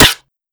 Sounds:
explosion, gunshot

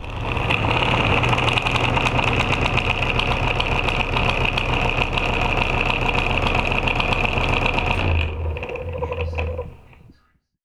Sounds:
mechanisms

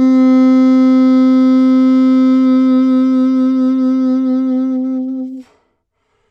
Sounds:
woodwind instrument, music, musical instrument

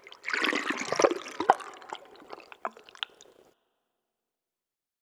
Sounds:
water

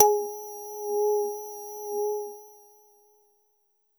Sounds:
keyboard (musical), musical instrument, music

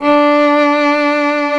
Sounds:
musical instrument, music, bowed string instrument

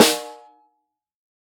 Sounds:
music, drum, percussion, snare drum, musical instrument

